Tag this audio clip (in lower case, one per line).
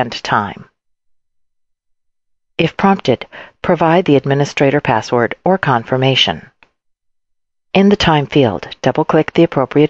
speech